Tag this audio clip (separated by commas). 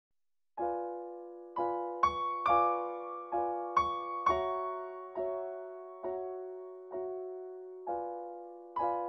Keyboard (musical), Piano